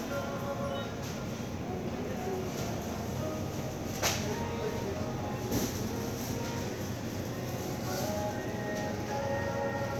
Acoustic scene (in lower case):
crowded indoor space